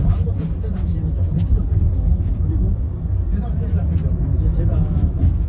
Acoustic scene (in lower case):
car